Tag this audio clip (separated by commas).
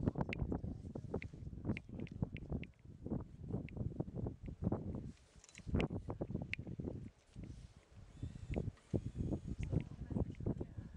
Eruption